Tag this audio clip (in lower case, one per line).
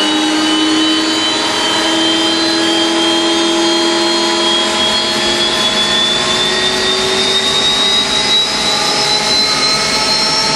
sailing ship